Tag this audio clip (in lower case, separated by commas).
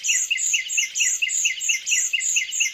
animal, bird, chirp, wild animals, bird vocalization